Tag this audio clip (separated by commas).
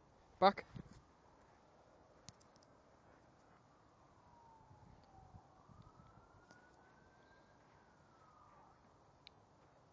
Speech